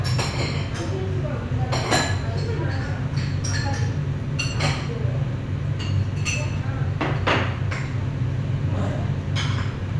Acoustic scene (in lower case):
restaurant